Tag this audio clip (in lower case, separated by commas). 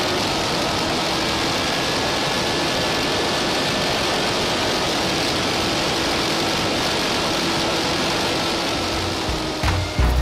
vehicle, music